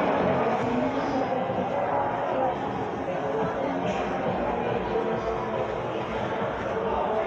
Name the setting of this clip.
crowded indoor space